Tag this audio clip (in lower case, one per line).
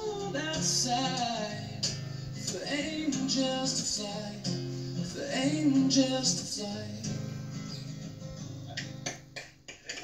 male singing
music